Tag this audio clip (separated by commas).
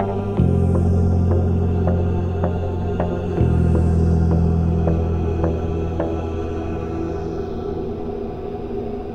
Music